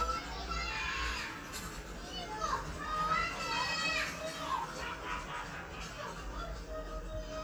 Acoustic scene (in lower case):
residential area